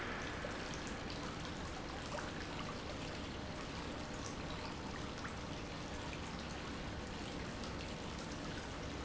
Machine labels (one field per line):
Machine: pump